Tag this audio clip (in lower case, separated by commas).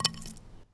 wood